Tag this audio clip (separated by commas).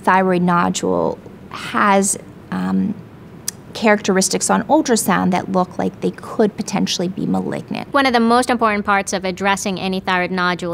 Speech